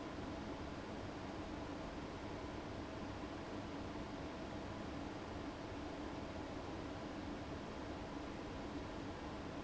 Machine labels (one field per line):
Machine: fan